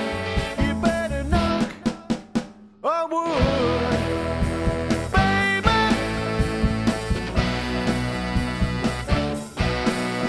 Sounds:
percussion, ska, drum, music, bass drum, drum kit, musical instrument

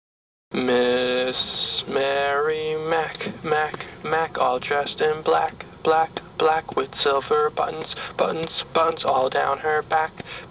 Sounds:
speech

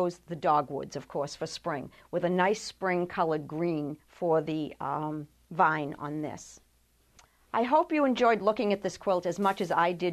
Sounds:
inside a small room, speech

